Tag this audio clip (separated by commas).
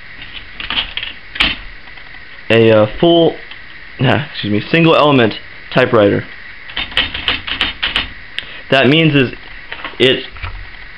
Typewriter, Speech